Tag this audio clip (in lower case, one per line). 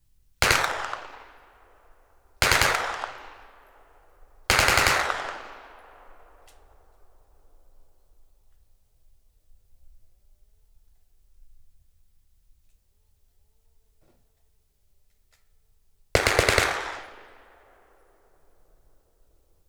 explosion
gunfire